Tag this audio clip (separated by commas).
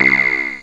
Musical instrument, Music, Keyboard (musical)